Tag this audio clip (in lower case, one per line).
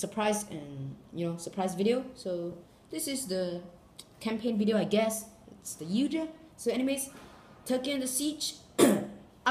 speech